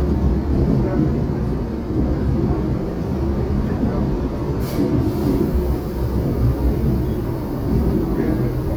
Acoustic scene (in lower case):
subway train